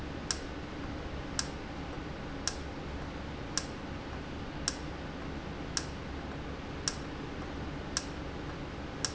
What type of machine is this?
valve